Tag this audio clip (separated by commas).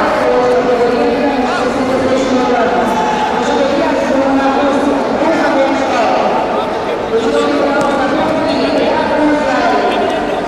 Speech